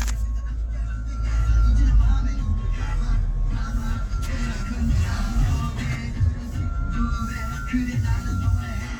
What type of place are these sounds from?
car